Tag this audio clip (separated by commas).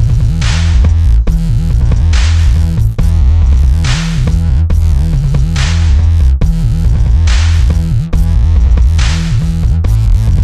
Dubstep, Music